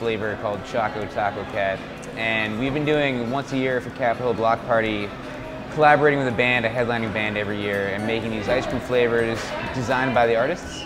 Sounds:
speech
music

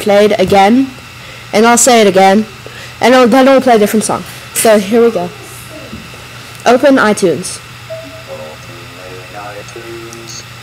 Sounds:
speech
woman speaking

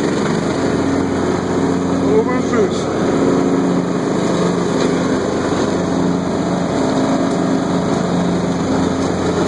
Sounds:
speech

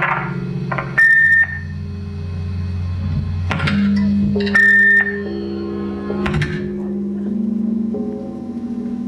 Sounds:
music
musical instrument

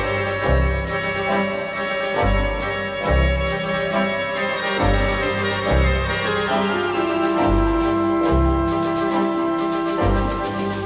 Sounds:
organ
hammond organ

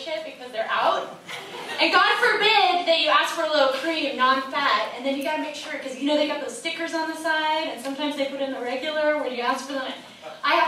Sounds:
speech

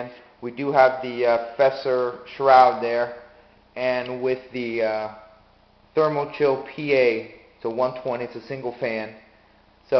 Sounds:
speech

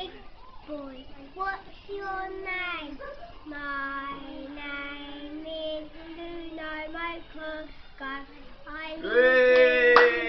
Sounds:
child singing

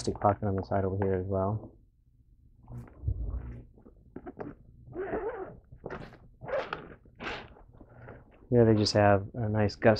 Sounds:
inside a small room
speech

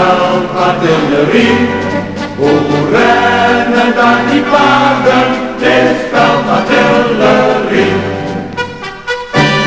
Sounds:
music

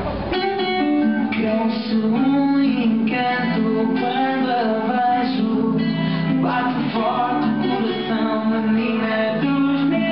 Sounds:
vocal music

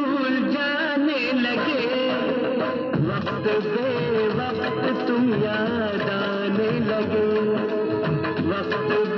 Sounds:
singing
music
music of bollywood

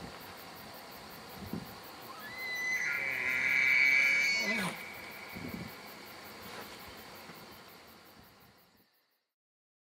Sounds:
elk bugling

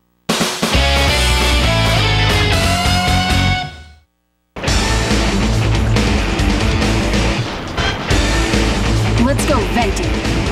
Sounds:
speech
music

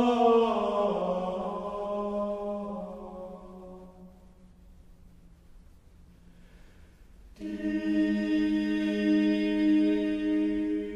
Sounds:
mantra

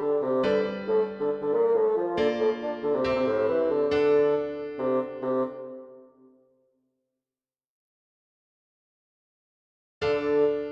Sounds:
playing bassoon

